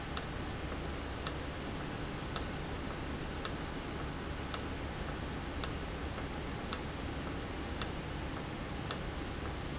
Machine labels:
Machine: valve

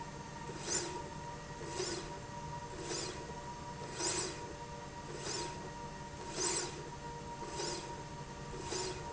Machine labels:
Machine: slide rail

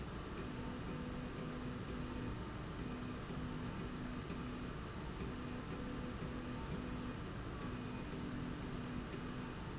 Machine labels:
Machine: slide rail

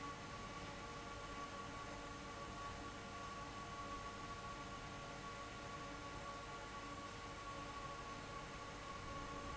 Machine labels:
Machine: fan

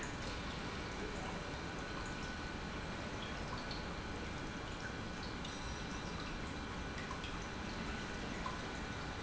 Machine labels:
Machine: pump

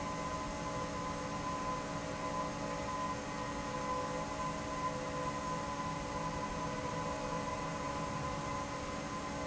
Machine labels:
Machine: fan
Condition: normal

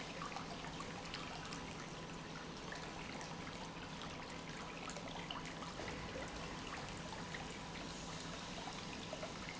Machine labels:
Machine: pump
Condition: normal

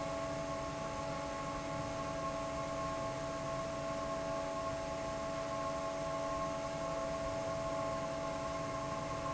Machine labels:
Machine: fan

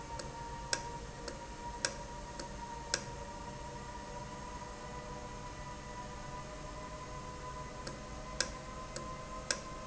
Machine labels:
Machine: valve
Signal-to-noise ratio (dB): 0 dB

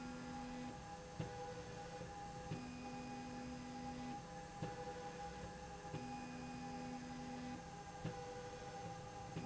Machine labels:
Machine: slide rail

